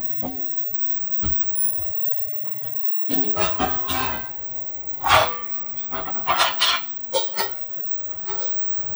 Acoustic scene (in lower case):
kitchen